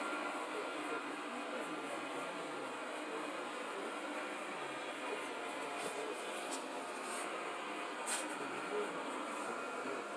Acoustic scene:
subway train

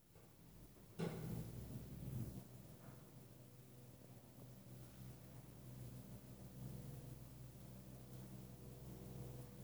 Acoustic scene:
elevator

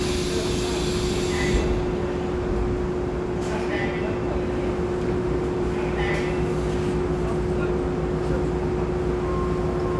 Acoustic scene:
subway train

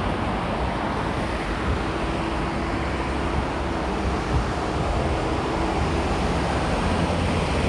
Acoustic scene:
street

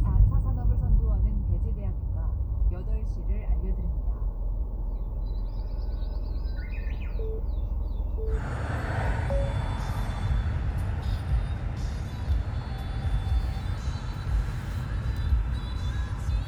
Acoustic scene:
car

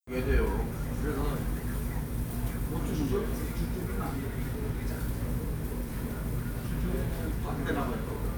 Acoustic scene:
restaurant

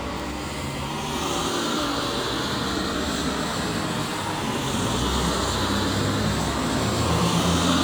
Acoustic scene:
street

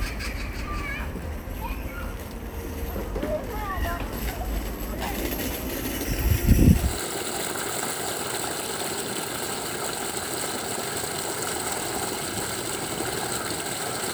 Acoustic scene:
park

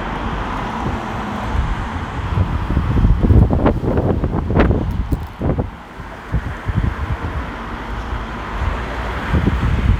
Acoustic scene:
street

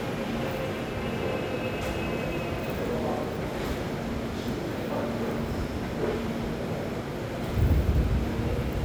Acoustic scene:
subway station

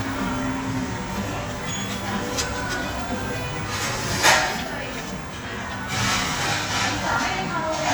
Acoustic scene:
crowded indoor space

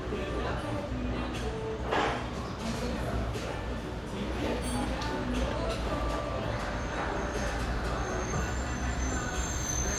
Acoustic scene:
cafe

